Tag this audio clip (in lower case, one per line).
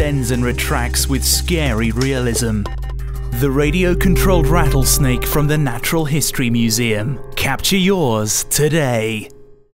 speech
music